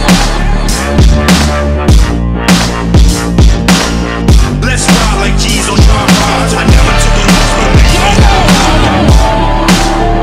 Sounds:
Music

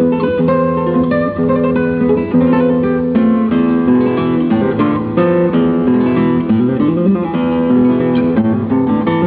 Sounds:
Musical instrument, Plucked string instrument, Music, Strum, Guitar

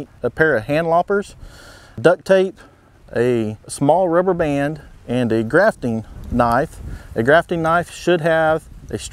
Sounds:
Speech

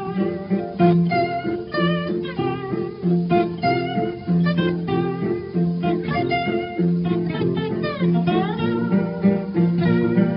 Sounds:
Music

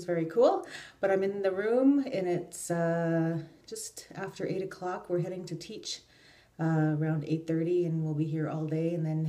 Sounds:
Speech

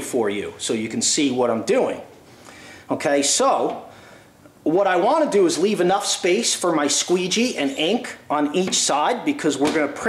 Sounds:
inside a small room, Speech

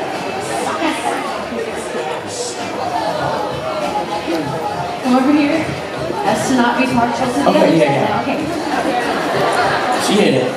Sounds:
inside a public space, Speech

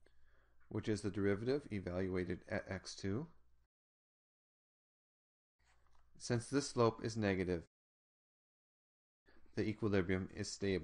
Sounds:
Speech

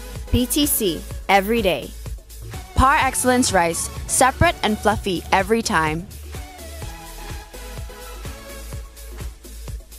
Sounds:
Speech, Music

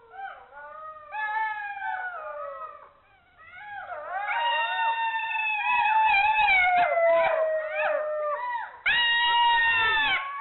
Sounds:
coyote howling

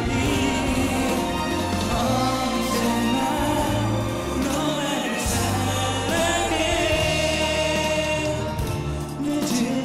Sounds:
Singing, Music of Asia, Music

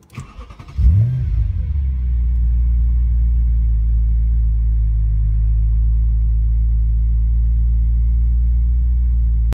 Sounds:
Engine starting, vroom, Vehicle

